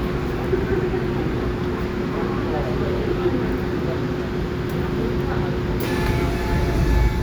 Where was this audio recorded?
on a subway train